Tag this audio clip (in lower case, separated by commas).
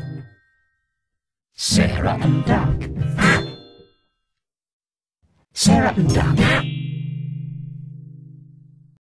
music, quack, speech